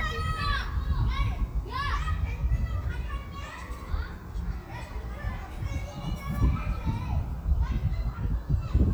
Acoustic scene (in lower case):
residential area